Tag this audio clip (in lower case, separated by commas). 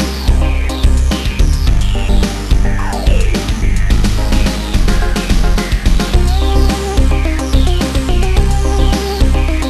funk, music